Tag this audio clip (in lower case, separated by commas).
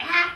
kid speaking, human voice, speech